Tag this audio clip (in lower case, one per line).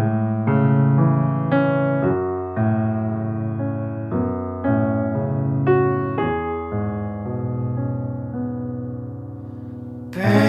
music